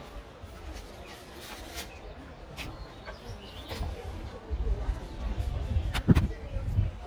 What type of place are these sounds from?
park